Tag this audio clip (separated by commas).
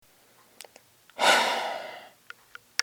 Respiratory sounds, Breathing, Human voice, Sigh